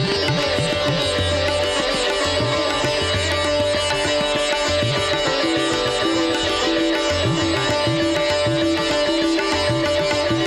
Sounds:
Plucked string instrument, Sitar, Music, Musical instrument

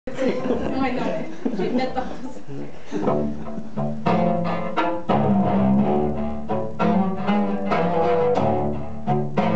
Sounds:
Speech, Double bass, Music, Bowed string instrument, Musical instrument

